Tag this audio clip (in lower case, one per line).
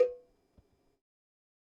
cowbell
bell